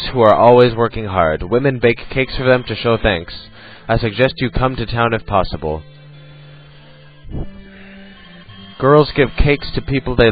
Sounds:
Speech, Music

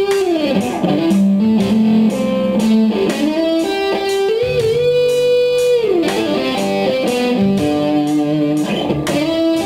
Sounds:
Musical instrument, Tapping (guitar technique)

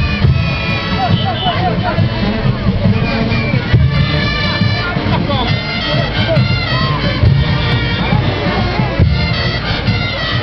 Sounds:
Speech, Happy music, Music

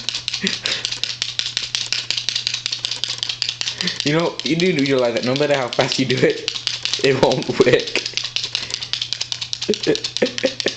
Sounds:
Speech

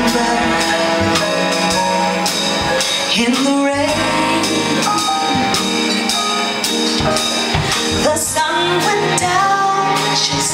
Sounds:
Music

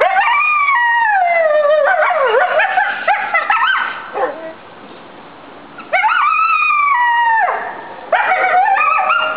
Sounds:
coyote howling

